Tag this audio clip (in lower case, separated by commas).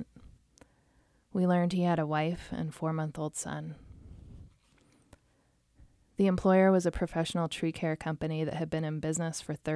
speech